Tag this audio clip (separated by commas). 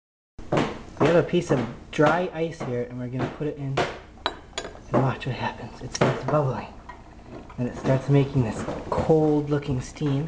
Speech, inside a small room